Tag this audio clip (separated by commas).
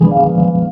Musical instrument, Music, Organ, Keyboard (musical)